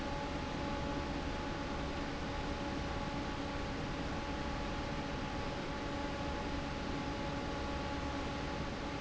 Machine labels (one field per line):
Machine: fan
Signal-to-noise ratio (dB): -6 dB